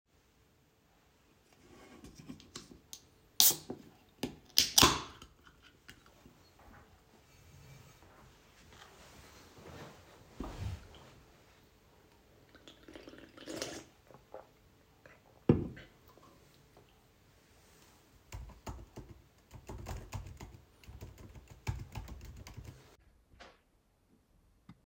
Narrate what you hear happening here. I cracked a can, then moved the chair to sit down. After slurping on the drink, I typed on the keyboard.